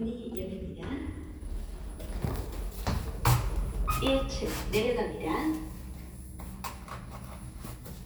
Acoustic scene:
elevator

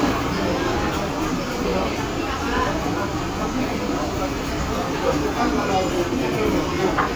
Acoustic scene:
restaurant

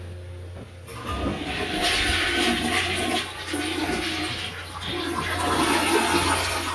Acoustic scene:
restroom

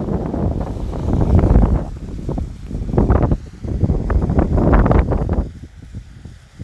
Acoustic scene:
park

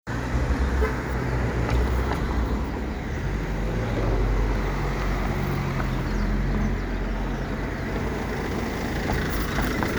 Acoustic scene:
residential area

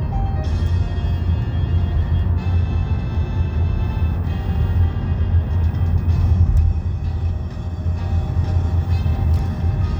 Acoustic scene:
car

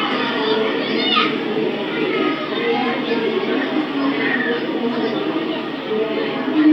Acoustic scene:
park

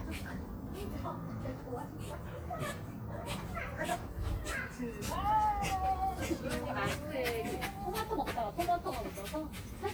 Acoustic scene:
residential area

